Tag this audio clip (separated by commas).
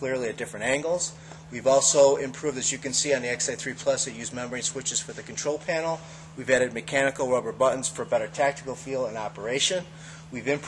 Speech